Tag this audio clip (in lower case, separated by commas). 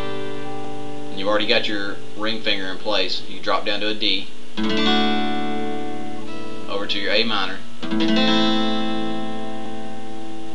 speech, music